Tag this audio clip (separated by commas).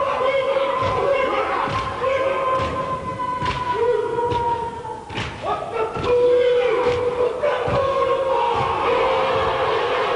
Music